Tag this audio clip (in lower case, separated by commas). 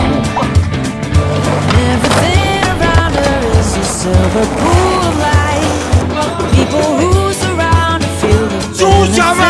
skateboard, music, speech